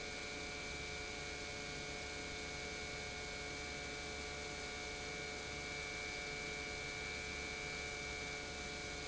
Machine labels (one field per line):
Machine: pump